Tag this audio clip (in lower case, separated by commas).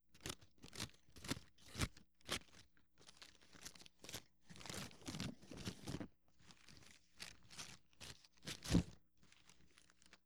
scissors, domestic sounds